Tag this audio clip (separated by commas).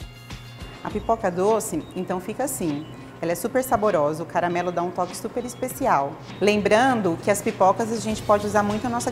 popping popcorn